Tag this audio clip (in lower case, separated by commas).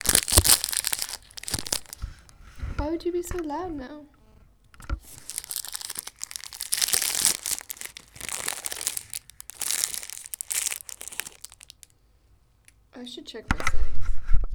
crumpling